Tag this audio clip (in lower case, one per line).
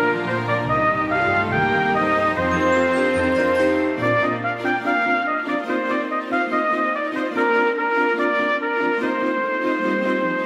music
christmas music